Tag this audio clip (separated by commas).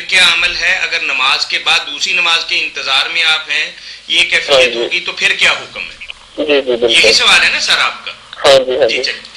Speech